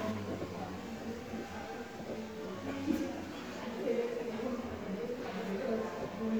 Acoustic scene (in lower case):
crowded indoor space